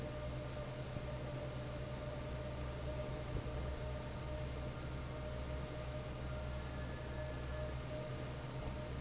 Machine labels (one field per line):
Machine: fan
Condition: normal